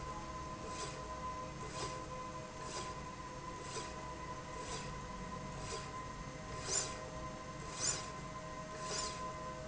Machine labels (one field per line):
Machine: slide rail